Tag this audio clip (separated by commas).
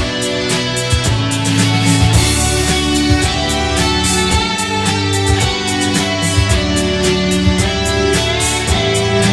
Music, Guitar, Acoustic guitar, Electric guitar, Plucked string instrument, Musical instrument